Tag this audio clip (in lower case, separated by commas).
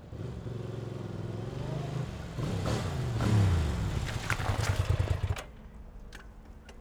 motorcycle, motor vehicle (road), vehicle